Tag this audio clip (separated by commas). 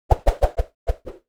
Whoosh